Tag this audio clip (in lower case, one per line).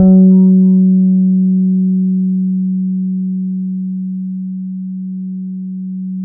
plucked string instrument
music
bass guitar
musical instrument
guitar